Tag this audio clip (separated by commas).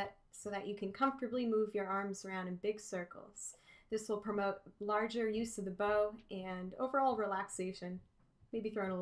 Speech